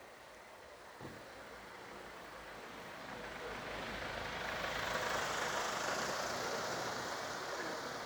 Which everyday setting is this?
residential area